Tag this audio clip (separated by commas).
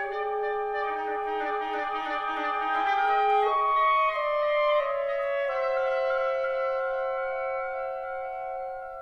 playing oboe